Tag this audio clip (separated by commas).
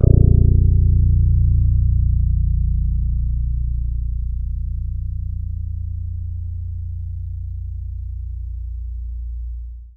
Guitar, Plucked string instrument, Musical instrument, Bass guitar, Music